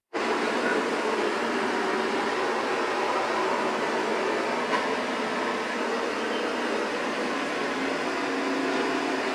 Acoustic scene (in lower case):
street